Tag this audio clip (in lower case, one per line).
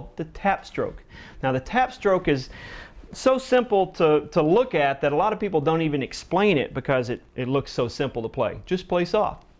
speech